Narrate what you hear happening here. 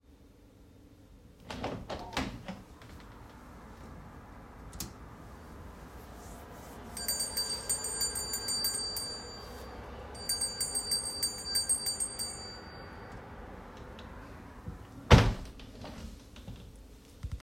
I opened the window, then ringed a bell and then closed the window. While the window was open one can here distant cars go by.